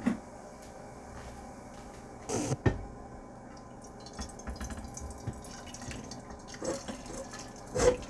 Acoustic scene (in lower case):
kitchen